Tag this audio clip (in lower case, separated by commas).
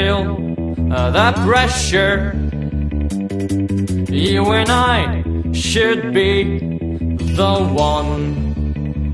music